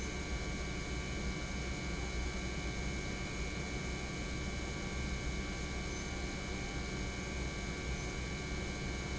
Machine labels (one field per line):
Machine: pump